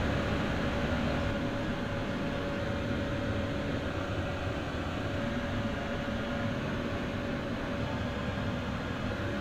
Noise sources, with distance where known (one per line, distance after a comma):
engine of unclear size, near